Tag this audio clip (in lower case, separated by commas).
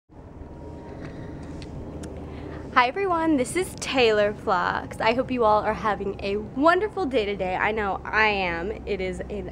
speech